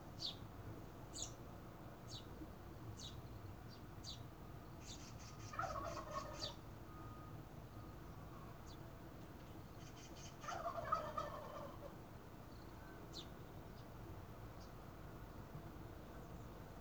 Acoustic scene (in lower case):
park